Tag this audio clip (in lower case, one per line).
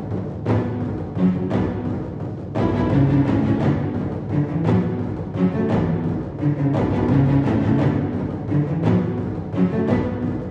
music